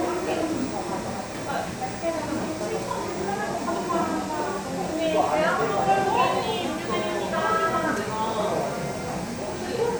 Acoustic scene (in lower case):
cafe